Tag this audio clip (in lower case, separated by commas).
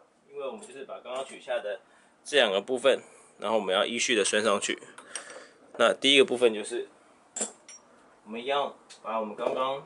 speech